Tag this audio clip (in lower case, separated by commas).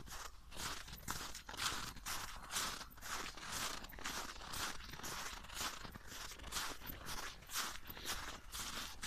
footsteps on snow